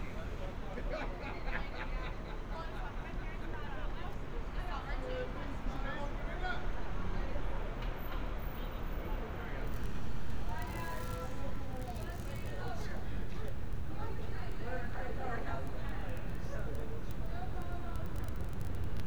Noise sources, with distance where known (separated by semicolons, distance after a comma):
person or small group talking; person or small group shouting